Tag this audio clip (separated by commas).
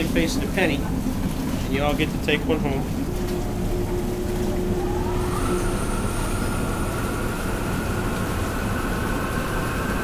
Speech